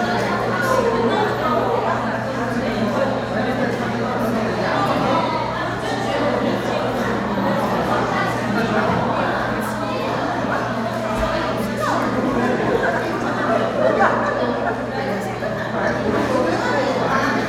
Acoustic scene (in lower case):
crowded indoor space